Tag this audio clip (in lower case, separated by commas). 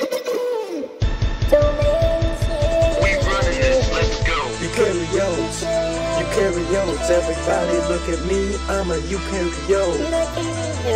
music